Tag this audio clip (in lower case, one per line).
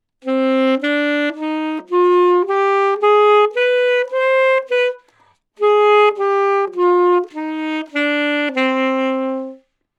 wind instrument
music
musical instrument